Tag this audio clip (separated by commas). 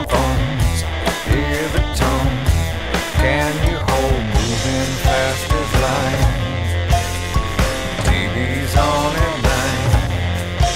Music